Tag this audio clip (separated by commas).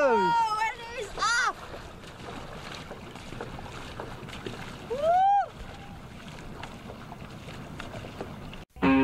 canoe, Speech, Boat, Vehicle, Music